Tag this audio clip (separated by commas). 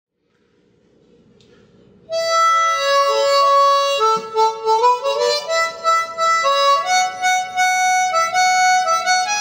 Wind instrument, Harmonica